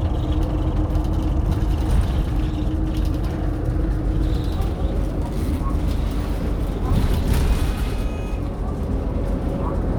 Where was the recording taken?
on a bus